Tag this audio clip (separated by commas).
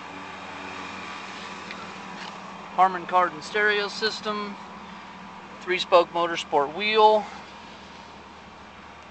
Speech